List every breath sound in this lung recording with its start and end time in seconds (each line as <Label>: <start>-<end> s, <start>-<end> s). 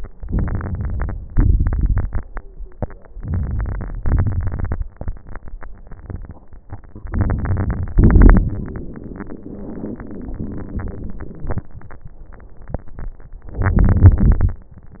Inhalation: 0.15-1.25 s, 3.13-3.99 s, 7.09-7.94 s, 13.51-14.58 s
Exhalation: 3.99-4.84 s, 7.98-11.66 s
Crackles: 0.15-1.25 s, 1.29-2.33 s, 3.13-3.99 s, 3.99-4.84 s, 7.09-7.94 s, 7.98-11.66 s, 13.51-14.58 s